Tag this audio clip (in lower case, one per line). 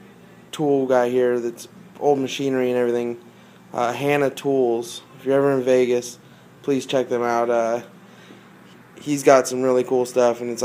speech